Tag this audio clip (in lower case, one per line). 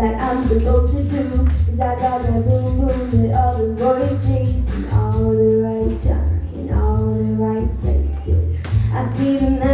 female singing
music